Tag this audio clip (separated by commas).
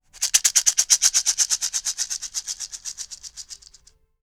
Musical instrument, Rattle, Music, Percussion, Rattle (instrument)